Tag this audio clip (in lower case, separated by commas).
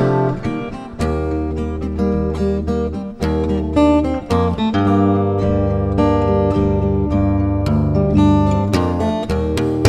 musical instrument, acoustic guitar, plucked string instrument, guitar, music, playing acoustic guitar